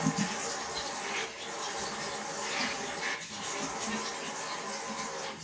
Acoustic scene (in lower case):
restroom